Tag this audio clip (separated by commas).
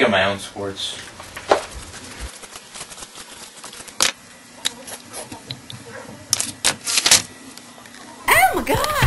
Speech, Music